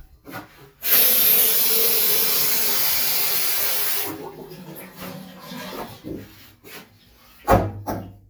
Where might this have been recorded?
in a restroom